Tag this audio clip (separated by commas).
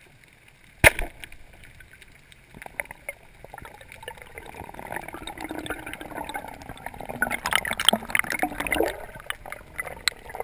Gurgling